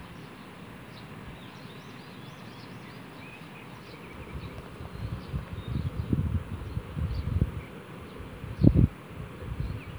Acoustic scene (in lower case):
park